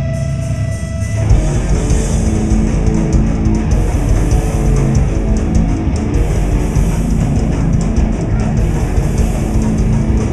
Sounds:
music

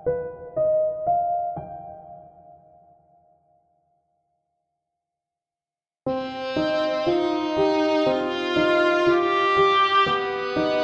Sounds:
music

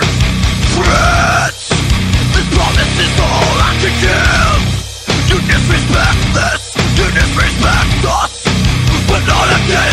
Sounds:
music

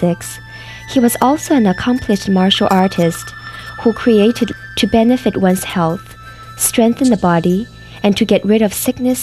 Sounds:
music
speech

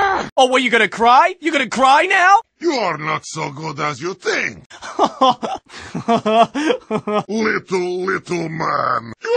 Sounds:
speech

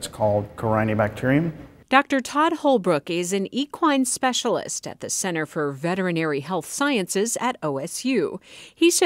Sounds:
speech

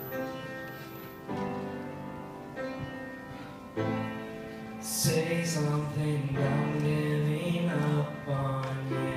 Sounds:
vocal music
singing

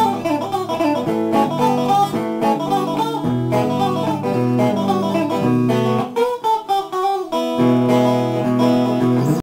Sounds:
acoustic guitar
musical instrument
plucked string instrument
bass guitar
guitar
music
strum

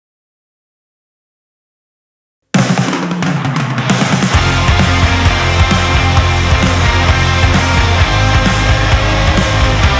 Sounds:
music

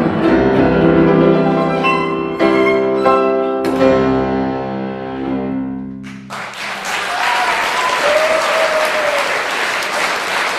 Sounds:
bowed string instrument
cello

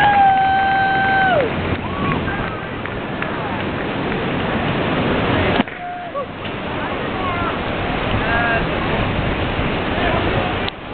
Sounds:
speech
sailing ship

